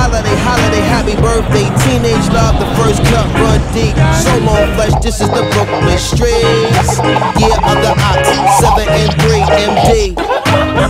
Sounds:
music

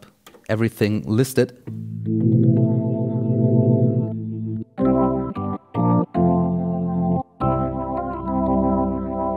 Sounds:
synthesizer, musical instrument, speech, electric piano, music, keyboard (musical), piano

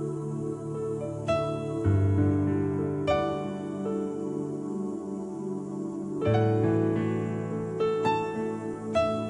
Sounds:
music

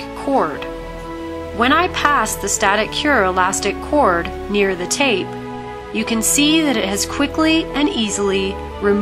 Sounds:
music, speech

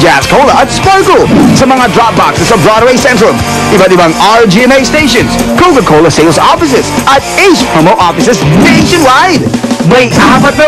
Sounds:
music, speech

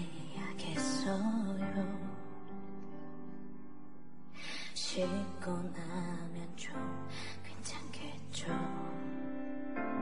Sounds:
music

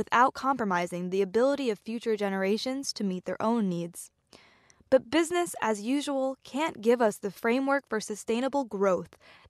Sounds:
speech

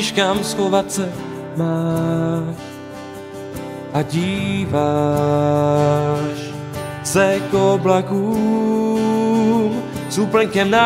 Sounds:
music, middle eastern music

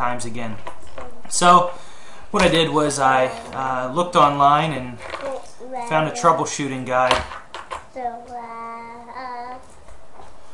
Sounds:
speech

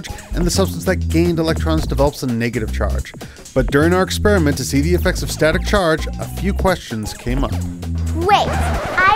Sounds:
speech, music

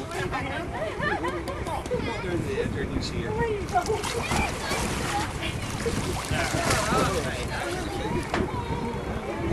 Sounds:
water vehicle, speech, vehicle

